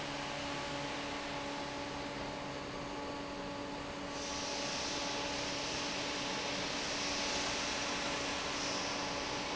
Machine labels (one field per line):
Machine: fan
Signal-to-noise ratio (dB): -6 dB